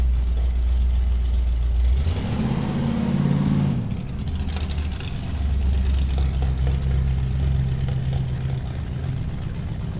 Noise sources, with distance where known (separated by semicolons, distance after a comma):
medium-sounding engine, near